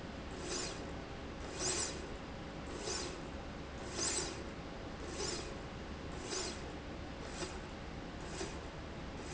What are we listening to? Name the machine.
slide rail